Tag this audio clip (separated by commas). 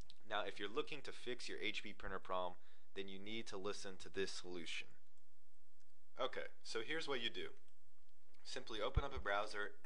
Speech